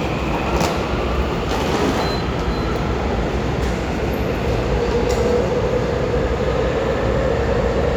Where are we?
in a subway station